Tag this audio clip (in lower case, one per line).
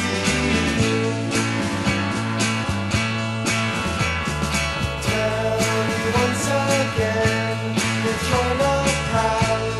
music